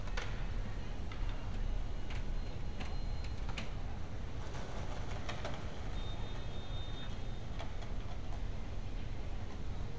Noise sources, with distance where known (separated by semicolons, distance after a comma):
car horn, far